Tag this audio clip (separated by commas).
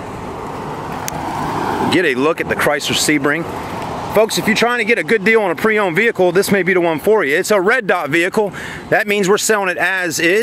Car, Speech, Vehicle